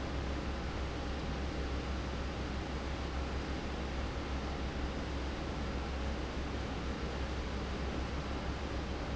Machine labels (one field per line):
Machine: fan